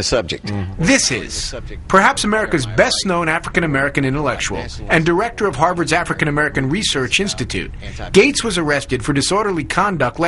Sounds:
speech

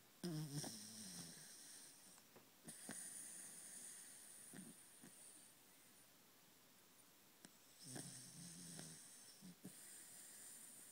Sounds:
dog, snoring, animal

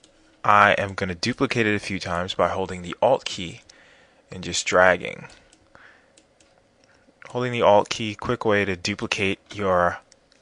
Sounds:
speech

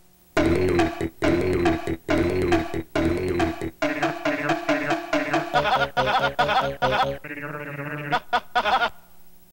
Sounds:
music, soundtrack music

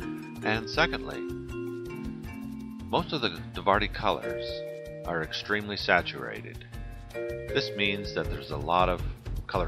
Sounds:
speech, music

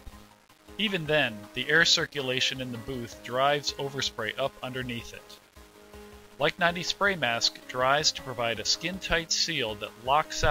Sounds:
speech, music

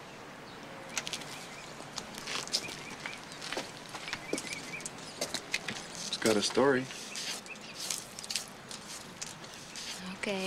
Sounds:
speech

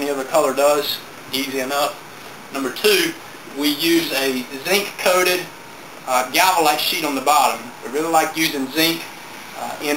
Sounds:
speech

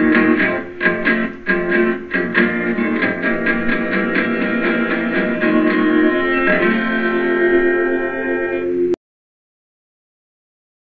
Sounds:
guitar, music

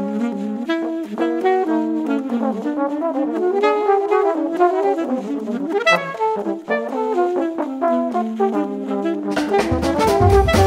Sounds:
musical instrument, trombone, music, drum kit, brass instrument

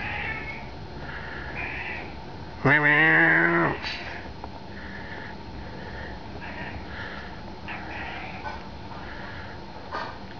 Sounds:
cat, domestic animals, animal, meow

